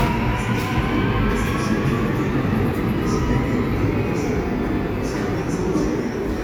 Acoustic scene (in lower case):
subway station